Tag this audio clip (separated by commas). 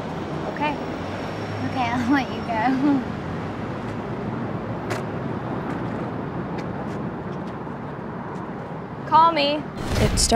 outside, urban or man-made, Speech